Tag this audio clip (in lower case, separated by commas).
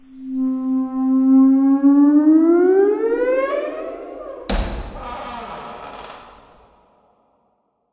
squeak